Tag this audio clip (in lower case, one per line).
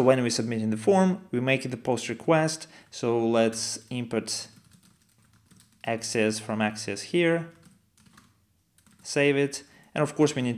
speech